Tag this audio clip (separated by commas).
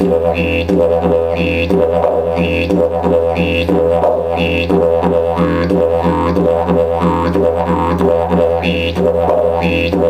Music, Didgeridoo